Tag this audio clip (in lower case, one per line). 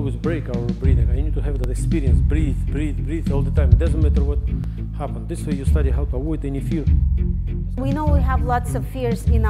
speech
music